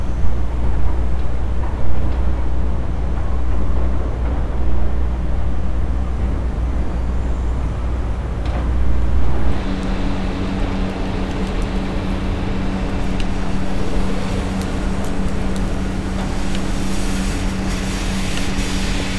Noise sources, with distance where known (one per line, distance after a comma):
engine of unclear size